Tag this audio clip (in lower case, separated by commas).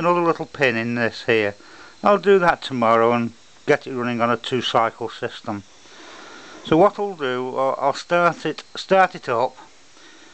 speech